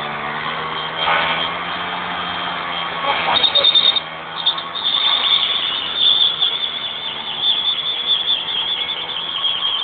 A motorcycle revving up and down with a whirring sound in the background